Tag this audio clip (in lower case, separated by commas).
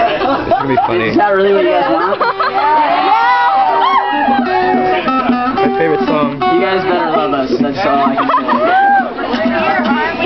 speech, music